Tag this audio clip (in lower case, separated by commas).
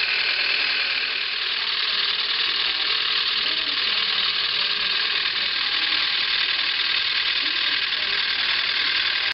speech